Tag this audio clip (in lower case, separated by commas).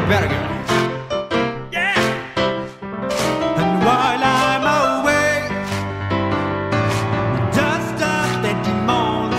music, rhythm and blues, blues